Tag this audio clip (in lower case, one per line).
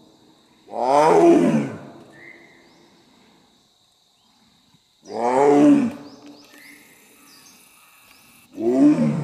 lions roaring